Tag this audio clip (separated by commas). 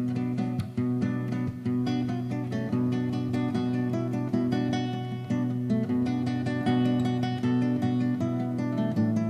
Musical instrument, Acoustic guitar, Plucked string instrument, Guitar, Music